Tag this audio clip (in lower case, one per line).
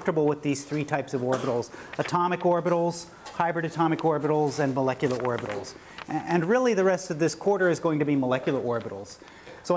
speech